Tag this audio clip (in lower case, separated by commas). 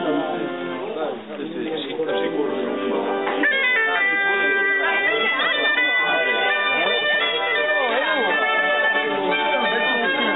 wind instrument, bagpipes